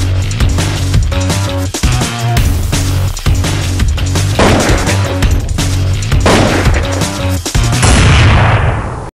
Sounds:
Music

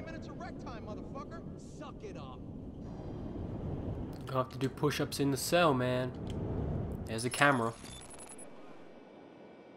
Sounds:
Speech

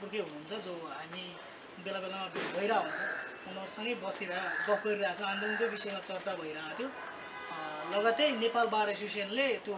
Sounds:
Speech

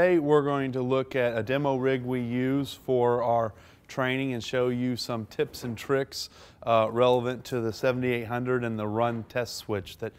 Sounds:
Speech

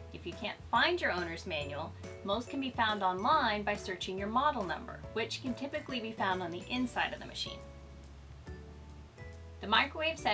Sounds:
Music, Speech

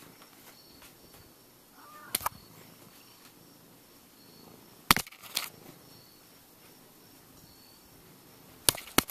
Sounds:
inside a small room, Animal

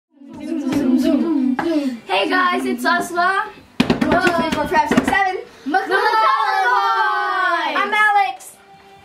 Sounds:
Speech

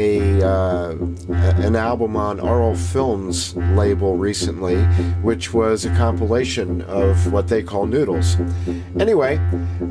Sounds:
Music, Speech

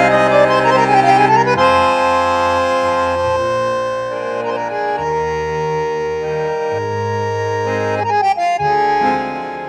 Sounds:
Music

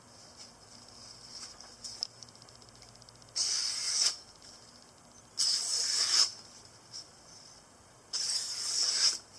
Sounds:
sharpen knife

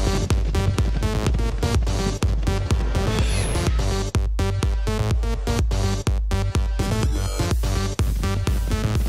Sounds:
Music

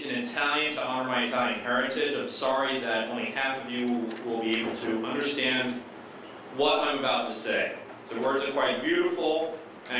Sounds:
man speaking, Speech, Narration

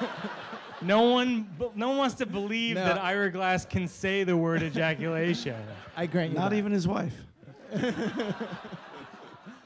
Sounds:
Speech

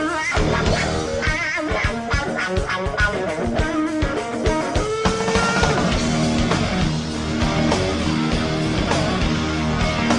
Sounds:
Musical instrument, Music, Plucked string instrument, Guitar, Electric guitar

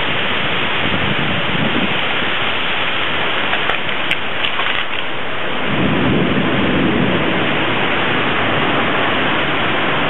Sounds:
Rain

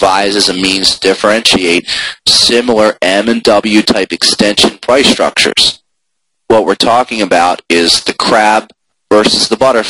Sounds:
Speech

